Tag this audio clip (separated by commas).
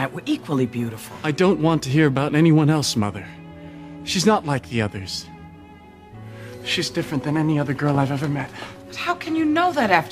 Speech, Music